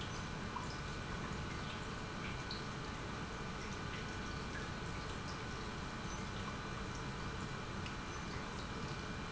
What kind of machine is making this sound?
pump